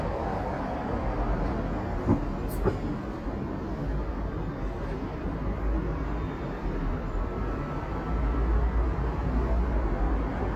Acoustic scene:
street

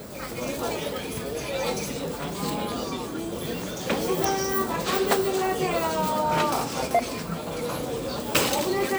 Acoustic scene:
crowded indoor space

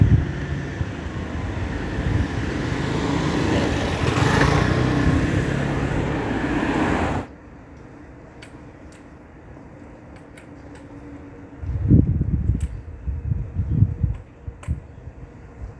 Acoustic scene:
residential area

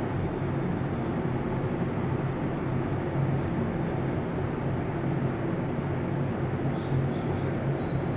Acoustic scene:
elevator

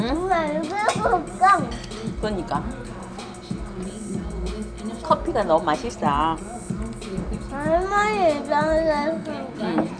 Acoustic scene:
restaurant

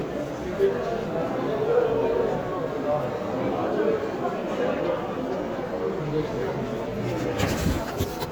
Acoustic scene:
crowded indoor space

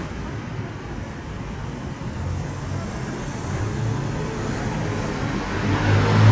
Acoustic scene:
street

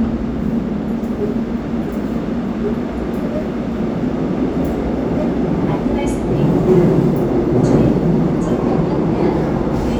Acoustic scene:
subway train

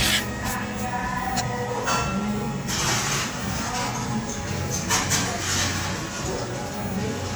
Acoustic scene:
cafe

